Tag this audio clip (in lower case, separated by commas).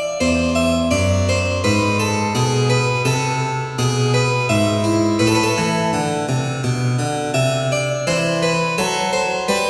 playing harpsichord